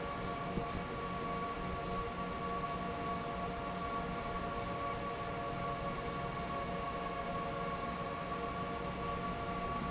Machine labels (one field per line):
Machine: fan